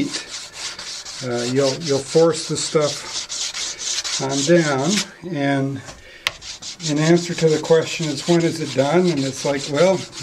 A scraping noise while a man speaks